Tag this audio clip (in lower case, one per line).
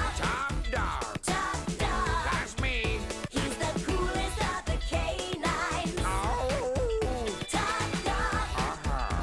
music
speech